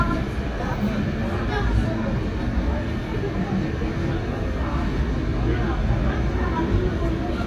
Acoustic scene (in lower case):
subway train